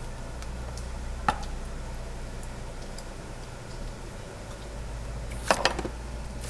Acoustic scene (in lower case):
restaurant